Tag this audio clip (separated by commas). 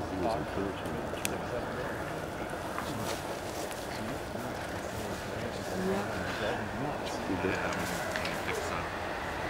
Speech